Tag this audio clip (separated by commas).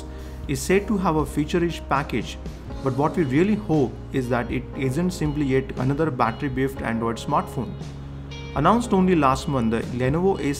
Music, Speech